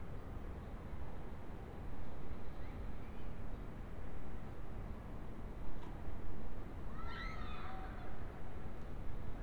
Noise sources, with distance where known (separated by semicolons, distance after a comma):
background noise